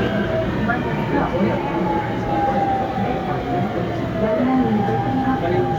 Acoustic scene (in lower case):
subway train